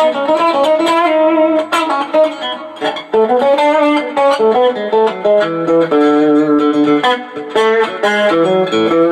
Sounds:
Musical instrument, Music, Guitar, Plucked string instrument, Electric guitar

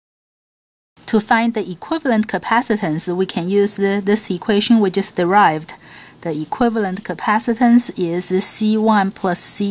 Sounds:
Speech

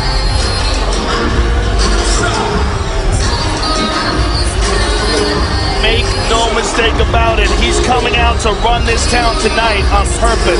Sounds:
Speech, Music

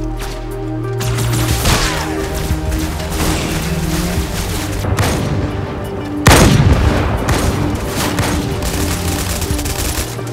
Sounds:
Gunshot

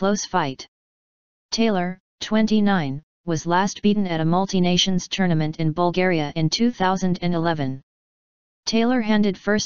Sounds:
Speech

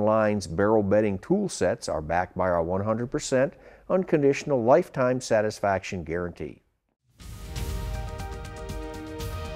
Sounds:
Speech, Music

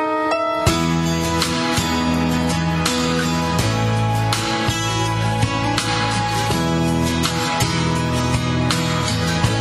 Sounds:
Music

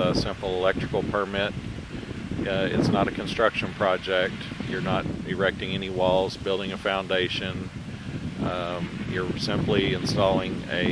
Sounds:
Wind noise (microphone), Wind

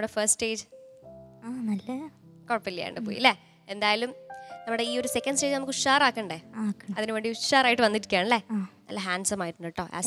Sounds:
Music, Speech

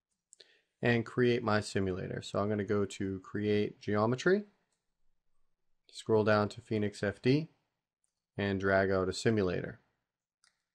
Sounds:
Speech

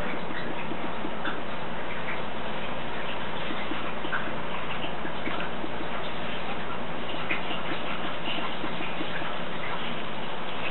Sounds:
inside a small room

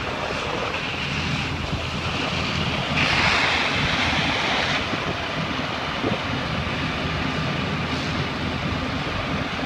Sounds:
Crackle

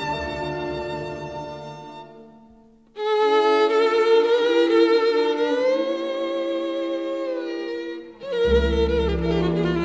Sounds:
String section

